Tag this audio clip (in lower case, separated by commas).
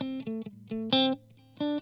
music, musical instrument, guitar, electric guitar, plucked string instrument